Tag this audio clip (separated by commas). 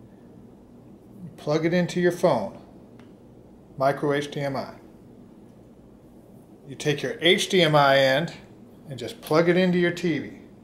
Speech